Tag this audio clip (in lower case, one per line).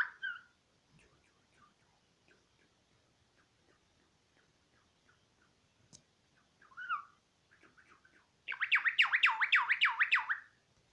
mynah bird singing